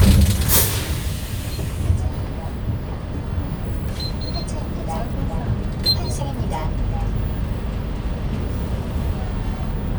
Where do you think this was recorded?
on a bus